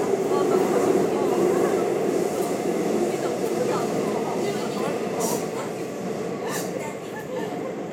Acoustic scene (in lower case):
subway train